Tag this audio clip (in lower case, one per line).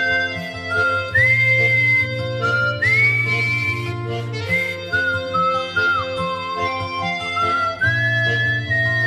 whistling
music